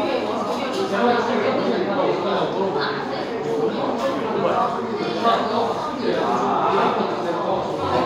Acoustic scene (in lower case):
cafe